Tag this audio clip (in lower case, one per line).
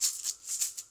rattle (instrument)
music
musical instrument
percussion